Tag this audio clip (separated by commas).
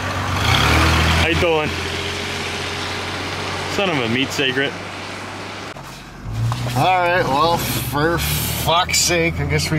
Speech, Vehicle, Car, outside, rural or natural